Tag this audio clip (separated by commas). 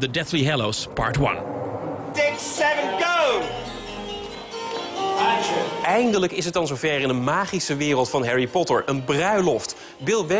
Music of Latin America